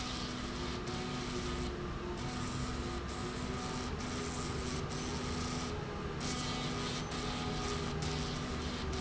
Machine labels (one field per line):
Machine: slide rail